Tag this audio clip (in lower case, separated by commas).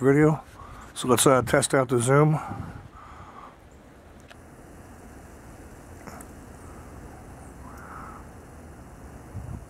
speech